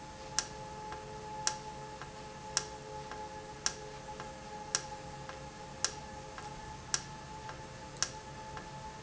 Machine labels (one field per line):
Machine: valve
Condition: normal